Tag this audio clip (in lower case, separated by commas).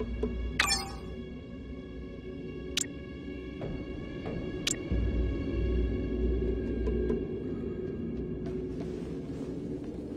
music, scary music